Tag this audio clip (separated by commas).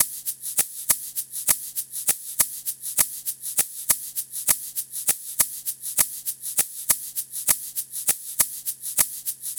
Rattle (instrument), Music, Musical instrument, Percussion